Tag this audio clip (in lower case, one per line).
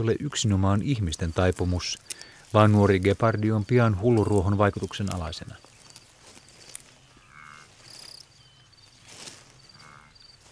speech